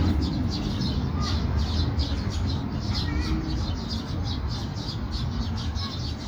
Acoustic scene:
park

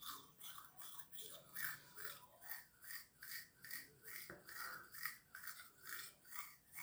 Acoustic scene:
restroom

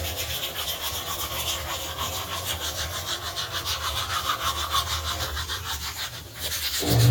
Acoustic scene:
restroom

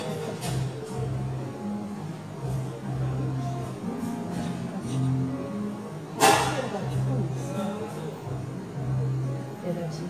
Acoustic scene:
cafe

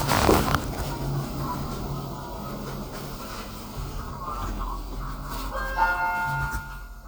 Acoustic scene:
elevator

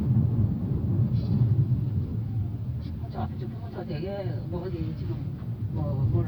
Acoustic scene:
car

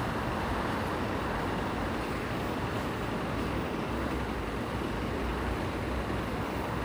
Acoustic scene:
residential area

